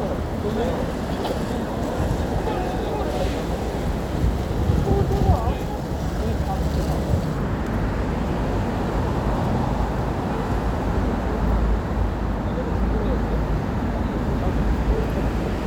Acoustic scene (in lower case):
street